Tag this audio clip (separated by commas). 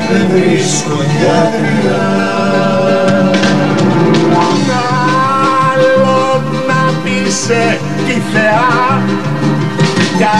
Country, Singing, Music